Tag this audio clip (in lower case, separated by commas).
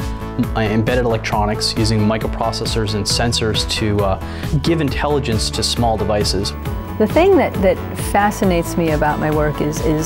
speech, music